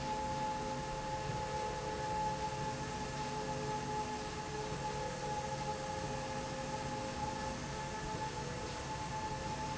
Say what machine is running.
slide rail